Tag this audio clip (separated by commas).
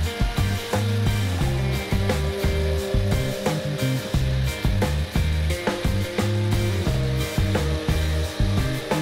Music